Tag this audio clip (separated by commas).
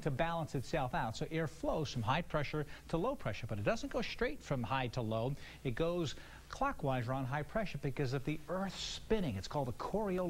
Speech